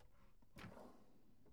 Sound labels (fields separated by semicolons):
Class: drawer; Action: opening